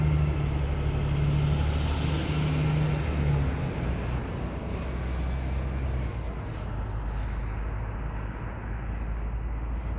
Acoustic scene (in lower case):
street